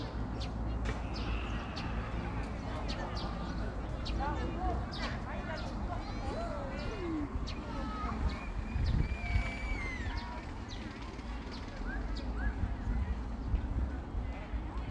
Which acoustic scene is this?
park